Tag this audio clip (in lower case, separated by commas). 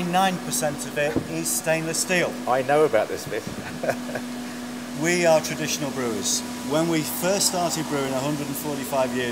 vacuum cleaner